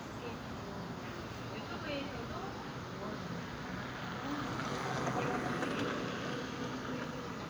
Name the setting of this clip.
park